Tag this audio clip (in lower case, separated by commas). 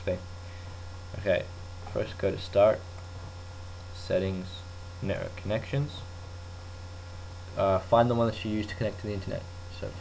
speech